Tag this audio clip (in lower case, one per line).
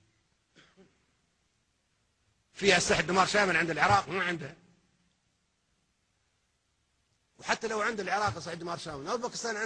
speech
male speech